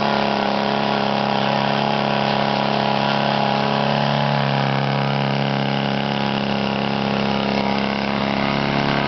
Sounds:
engine, medium engine (mid frequency)

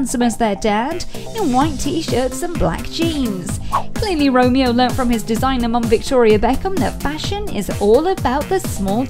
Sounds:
music, speech

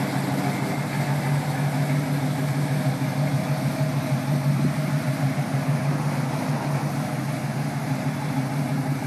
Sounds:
idling, vehicle, engine, medium engine (mid frequency)

